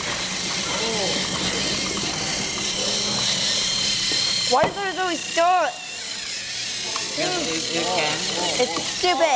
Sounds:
Speech

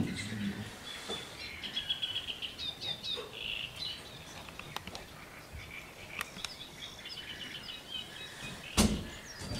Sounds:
Bird, tweeting, bird song, Chirp

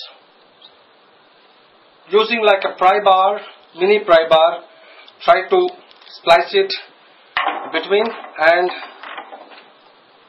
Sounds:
Speech

